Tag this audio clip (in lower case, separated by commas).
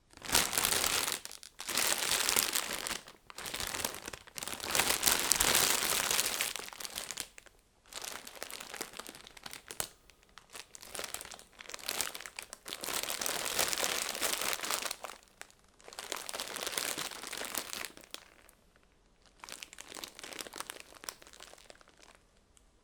crinkling